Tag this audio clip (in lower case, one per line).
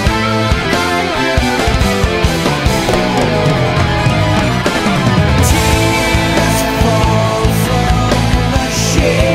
music
progressive rock